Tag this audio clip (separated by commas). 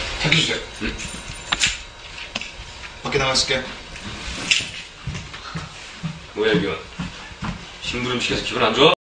Speech